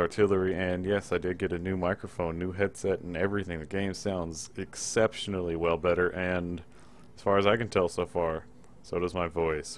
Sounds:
Speech

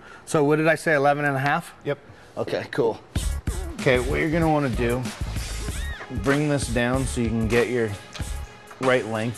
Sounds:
Speech, Music

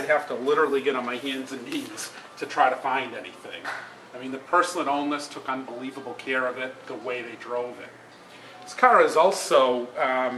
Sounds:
Speech

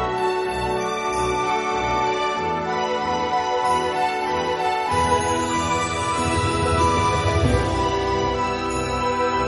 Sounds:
Music, New-age music

